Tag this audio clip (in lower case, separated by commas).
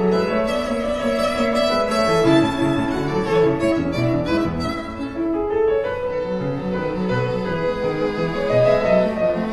musical instrument, violin, music, playing violin